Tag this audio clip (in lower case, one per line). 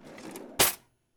silverware
domestic sounds